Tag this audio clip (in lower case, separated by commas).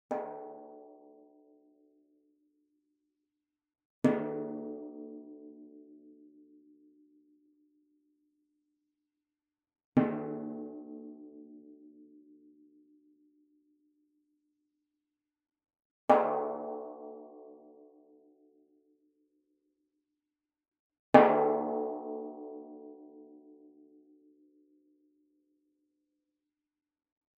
music, musical instrument, percussion, drum